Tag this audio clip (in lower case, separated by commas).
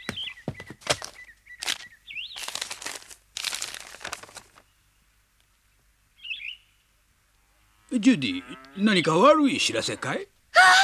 outside, rural or natural, speech